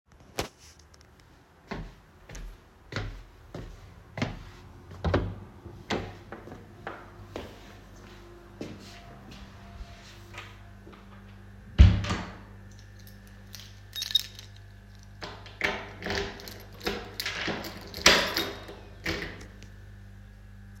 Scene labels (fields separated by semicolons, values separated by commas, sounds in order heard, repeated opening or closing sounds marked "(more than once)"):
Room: hallway; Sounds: footsteps, door (more than once), keys